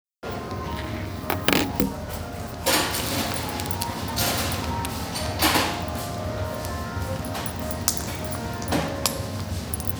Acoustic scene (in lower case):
cafe